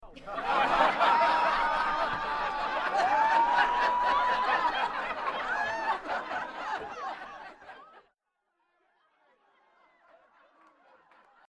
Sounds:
human voice
laughter

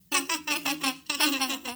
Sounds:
human voice
laughter

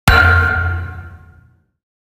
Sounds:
thump

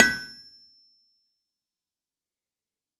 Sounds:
tools

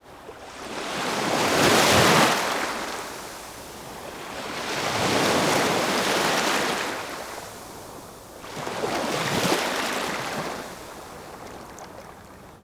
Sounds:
water
surf
ocean

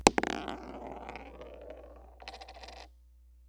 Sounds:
coin (dropping)
home sounds

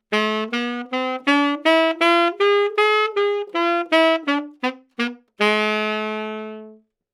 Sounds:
musical instrument
music
woodwind instrument

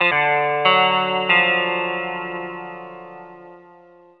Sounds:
plucked string instrument
musical instrument
music
guitar

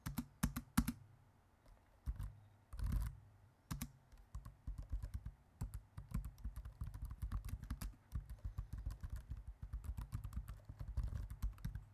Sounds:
domestic sounds
computer keyboard
typing

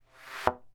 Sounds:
thump

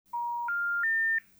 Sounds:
telephone
alarm

